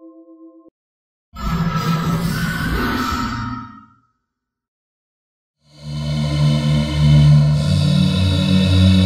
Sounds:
sound effect

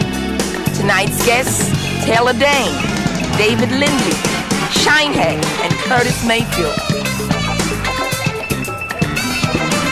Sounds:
music
speech
happy music
dance music
soundtrack music

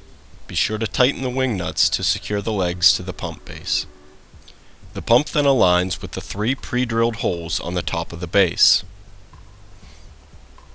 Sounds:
speech

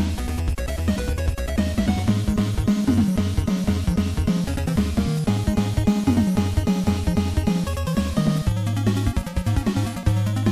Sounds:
video game music
music

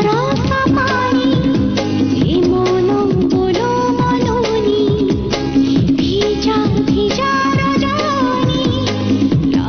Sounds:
music

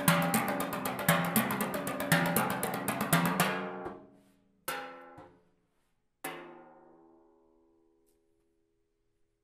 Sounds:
playing timpani

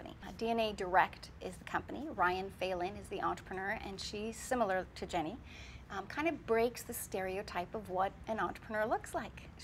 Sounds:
woman speaking
speech

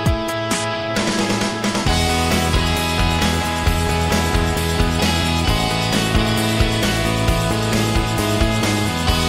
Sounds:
music

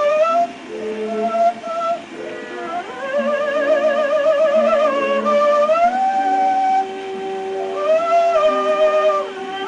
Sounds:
music

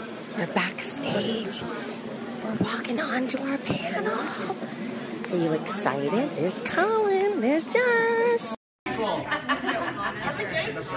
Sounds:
speech

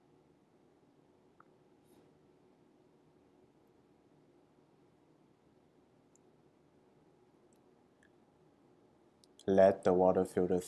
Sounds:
speech

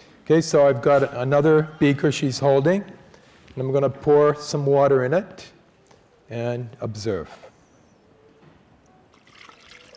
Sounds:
water

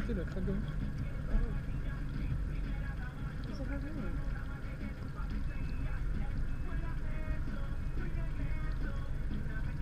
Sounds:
boat

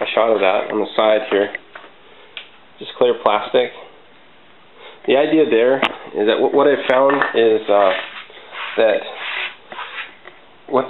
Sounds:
speech

